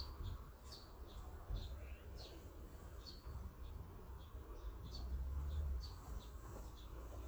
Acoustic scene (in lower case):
park